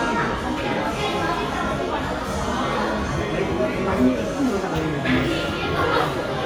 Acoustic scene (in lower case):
crowded indoor space